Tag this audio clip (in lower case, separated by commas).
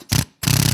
tools, drill, power tool